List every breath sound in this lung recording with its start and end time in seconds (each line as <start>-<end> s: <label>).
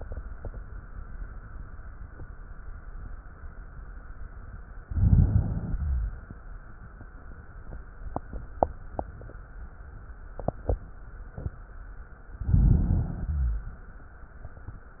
4.83-5.70 s: crackles
4.87-5.76 s: inhalation
5.72-6.80 s: exhalation
5.72-6.80 s: crackles
12.37-13.24 s: inhalation
12.37-13.24 s: crackles
13.24-14.32 s: exhalation
13.24-14.32 s: crackles